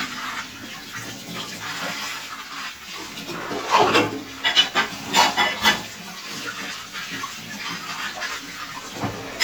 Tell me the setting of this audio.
kitchen